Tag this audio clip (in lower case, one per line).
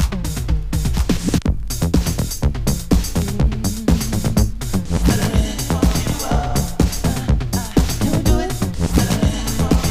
soundtrack music
music